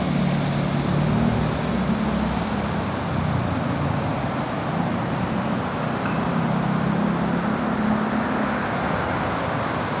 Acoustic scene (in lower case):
street